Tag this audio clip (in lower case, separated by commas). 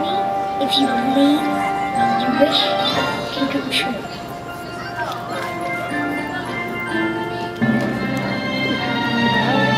music, speech, christmas music